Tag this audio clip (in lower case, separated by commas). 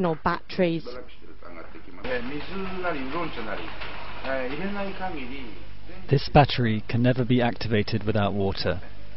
speech